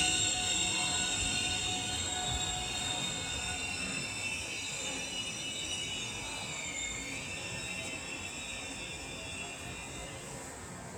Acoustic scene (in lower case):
subway station